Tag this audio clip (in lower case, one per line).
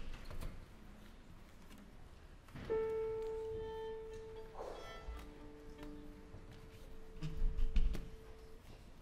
music